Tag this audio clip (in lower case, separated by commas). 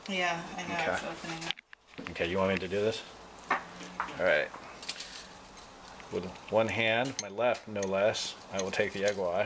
speech